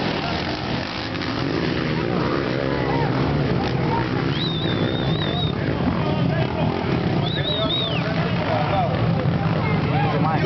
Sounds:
Speech

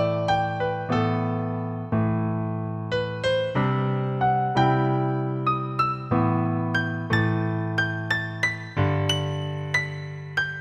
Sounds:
Music

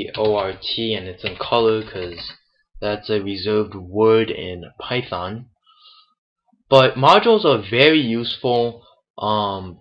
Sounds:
Speech

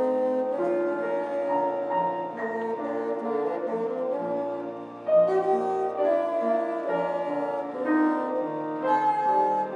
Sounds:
playing bassoon

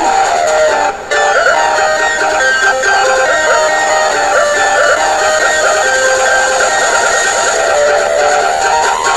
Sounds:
Music

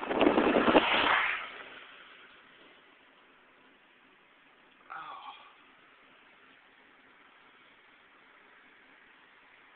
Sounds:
Speech, Motor vehicle (road), Vehicle

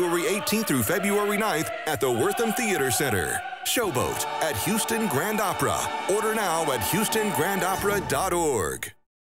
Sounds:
Speech, Music

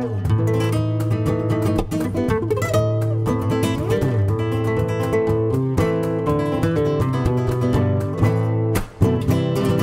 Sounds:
Guitar, Flamenco, Musical instrument, Music, Plucked string instrument

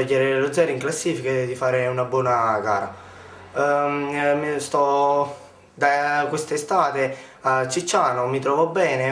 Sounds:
Speech

